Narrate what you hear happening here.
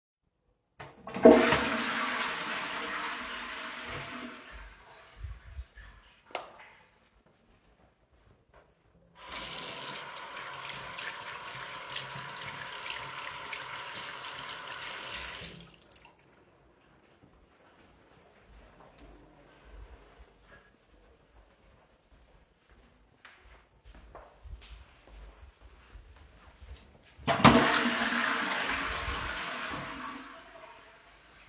I flush the toilet, walk to the sink and turn on the light. Turn the water on and wash my hands, turn the water off. Walk out around and flush the toilet again.